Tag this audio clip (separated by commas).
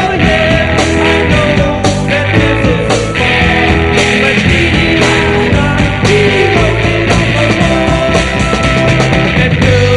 Music